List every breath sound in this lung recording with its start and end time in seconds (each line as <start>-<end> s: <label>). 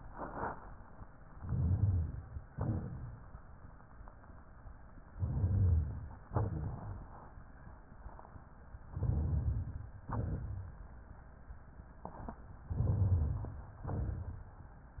1.35-2.43 s: inhalation
1.35-2.43 s: rhonchi
2.50-3.42 s: exhalation
2.50-3.42 s: rhonchi
5.11-6.21 s: inhalation
5.11-6.21 s: rhonchi
6.29-7.34 s: exhalation
6.29-7.34 s: rhonchi
8.88-9.94 s: inhalation
8.88-9.94 s: rhonchi
10.10-10.80 s: exhalation
10.10-10.80 s: rhonchi
12.70-13.79 s: inhalation
12.70-13.79 s: rhonchi
13.86-14.64 s: exhalation
13.86-14.64 s: rhonchi